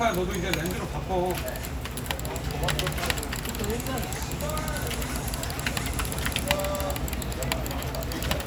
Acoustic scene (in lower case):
crowded indoor space